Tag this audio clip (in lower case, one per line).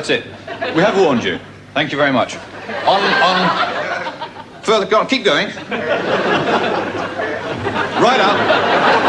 speech